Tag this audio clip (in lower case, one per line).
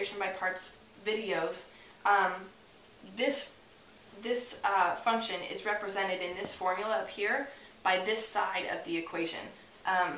speech
inside a small room